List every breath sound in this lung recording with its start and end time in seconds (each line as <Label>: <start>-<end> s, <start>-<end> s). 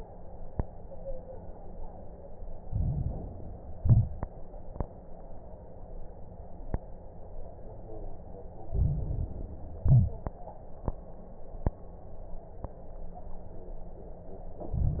Inhalation: 2.66-3.76 s, 8.72-9.82 s, 14.74-15.00 s
Exhalation: 3.78-4.22 s, 9.84-10.28 s
Crackles: 2.66-3.76 s, 3.78-4.22 s, 8.72-9.82 s, 9.84-10.28 s, 14.74-15.00 s